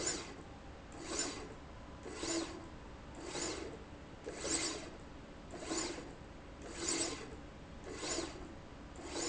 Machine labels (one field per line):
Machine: slide rail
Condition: abnormal